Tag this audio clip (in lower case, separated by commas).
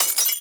shatter, glass